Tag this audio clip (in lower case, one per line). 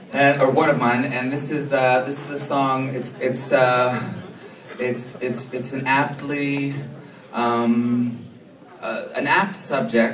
speech